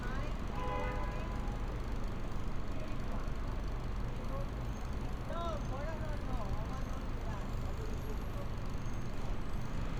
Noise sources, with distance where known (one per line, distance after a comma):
unidentified impact machinery
car horn, far
person or small group talking, near